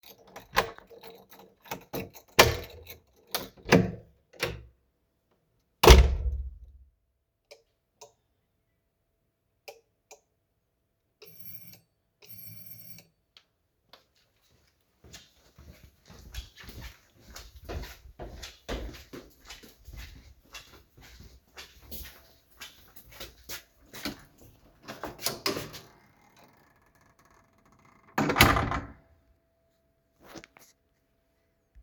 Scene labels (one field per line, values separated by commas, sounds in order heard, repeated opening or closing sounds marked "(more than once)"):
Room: living room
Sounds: door (more than once), keys, light switch, bell ringing, footsteps